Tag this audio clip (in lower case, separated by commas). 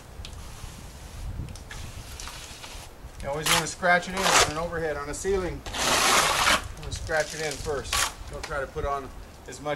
outside, rural or natural, speech